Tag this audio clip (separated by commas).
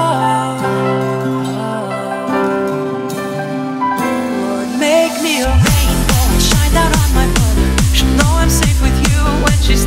Music